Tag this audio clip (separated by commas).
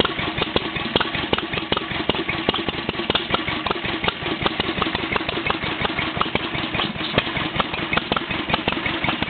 Engine, Idling